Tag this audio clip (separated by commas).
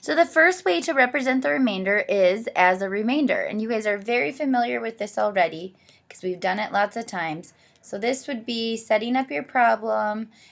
Speech